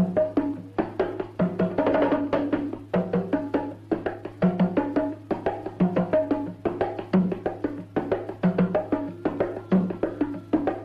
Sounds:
playing bongo

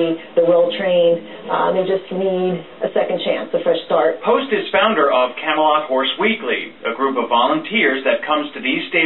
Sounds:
Speech

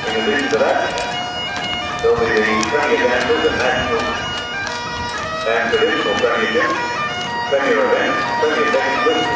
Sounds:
Music, Bagpipes, Speech, outside, urban or man-made

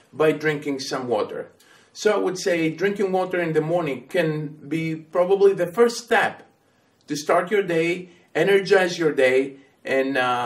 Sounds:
Speech

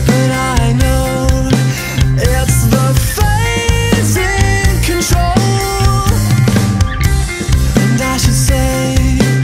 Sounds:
Music, House music

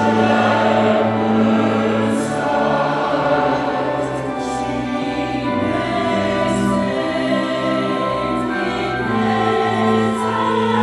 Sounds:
Choir, Music

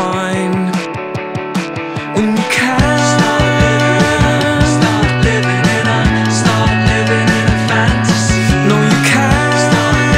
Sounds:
Music

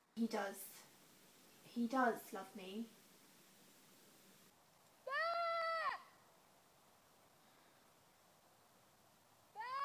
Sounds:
Speech

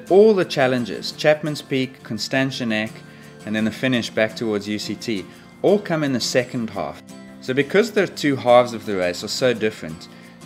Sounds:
Speech, Music

